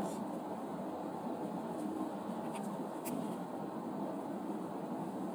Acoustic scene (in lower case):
car